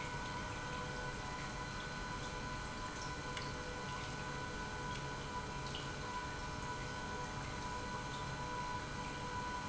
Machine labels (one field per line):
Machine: pump